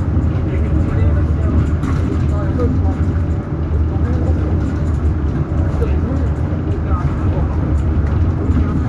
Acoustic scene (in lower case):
bus